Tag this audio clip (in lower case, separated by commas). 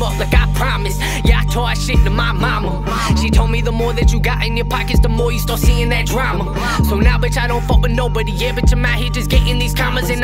music